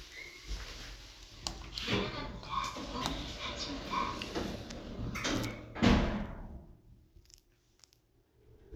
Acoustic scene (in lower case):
elevator